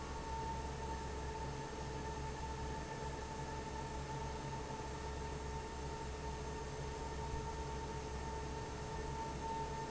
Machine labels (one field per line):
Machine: fan